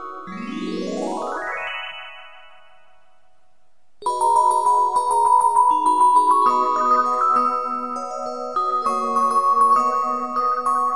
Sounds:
music

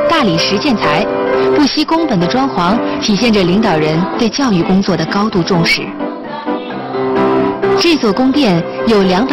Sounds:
speech, music

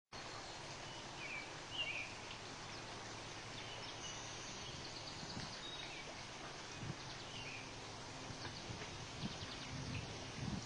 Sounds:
outside, rural or natural, animal

